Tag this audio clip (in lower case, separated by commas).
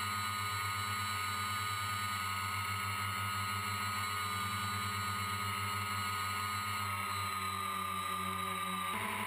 motorboat, vehicle